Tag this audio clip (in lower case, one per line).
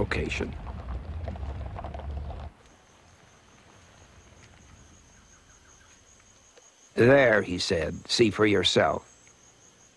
environmental noise